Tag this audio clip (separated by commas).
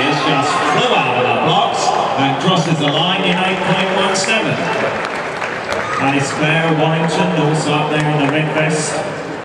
inside a public space, Speech